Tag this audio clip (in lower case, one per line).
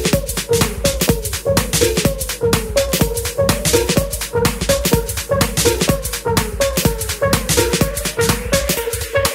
house music